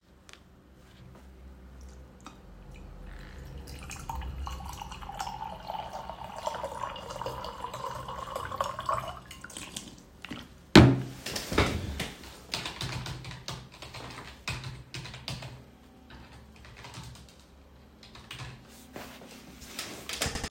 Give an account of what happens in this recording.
I poured water from the bottle to my cup, then I started typing on a computer keyboard nearby.